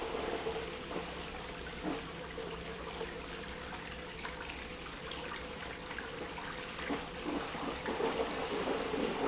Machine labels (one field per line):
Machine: pump